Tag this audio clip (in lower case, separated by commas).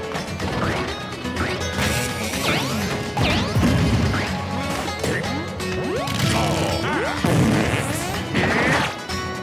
music